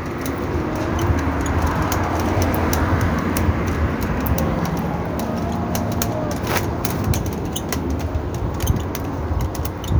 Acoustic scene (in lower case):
street